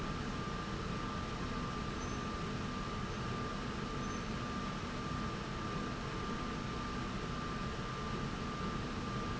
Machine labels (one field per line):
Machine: slide rail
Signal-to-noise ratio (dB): -6 dB